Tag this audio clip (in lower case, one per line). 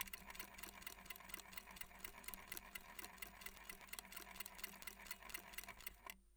mechanisms